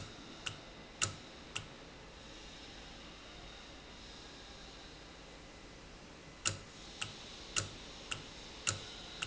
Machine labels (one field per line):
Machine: valve